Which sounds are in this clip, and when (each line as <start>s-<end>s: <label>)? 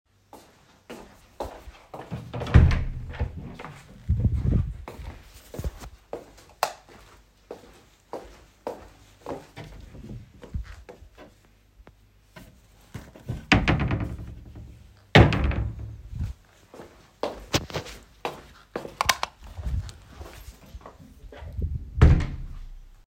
0.3s-2.4s: footsteps
2.5s-3.5s: wardrobe or drawer
6.5s-6.7s: footsteps
6.6s-7.1s: light switch
7.6s-10.9s: light switch
13.2s-14.9s: wardrobe or drawer
15.1s-16.4s: wardrobe or drawer
16.6s-16.7s: wardrobe or drawer
18.9s-19.4s: light switch
19.0s-19.3s: footsteps
19.4s-20.9s: light switch
21.9s-22.6s: door